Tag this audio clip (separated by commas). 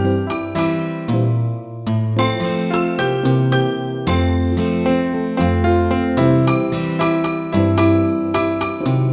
Music